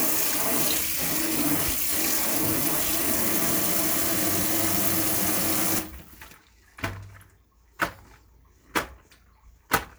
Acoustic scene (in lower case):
kitchen